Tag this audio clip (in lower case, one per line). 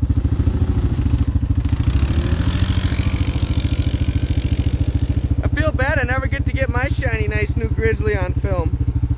speech